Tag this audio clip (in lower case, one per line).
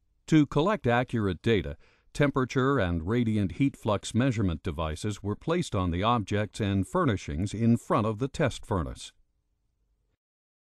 speech